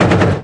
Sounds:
gunshot
explosion

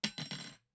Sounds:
cutlery
home sounds

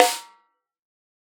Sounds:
music
musical instrument
percussion
snare drum
drum

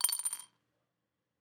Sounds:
domestic sounds
coin (dropping)

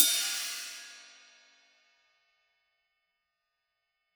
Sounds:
musical instrument
hi-hat
music
cymbal
percussion

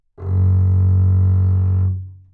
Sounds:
bowed string instrument
music
musical instrument

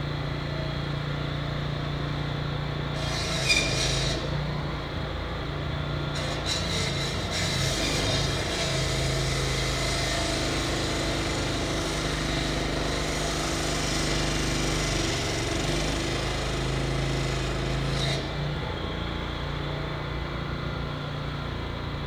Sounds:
tools
sawing

